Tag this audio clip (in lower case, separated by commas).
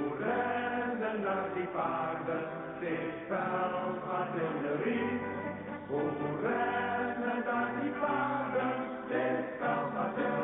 music